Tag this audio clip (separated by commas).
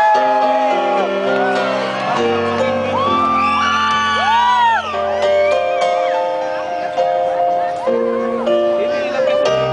Speech, Music